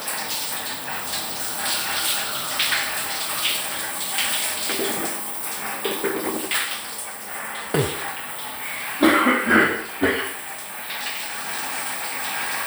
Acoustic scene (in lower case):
restroom